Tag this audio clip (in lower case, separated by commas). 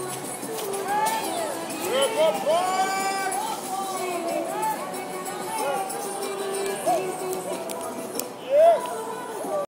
speech, music, outside, urban or man-made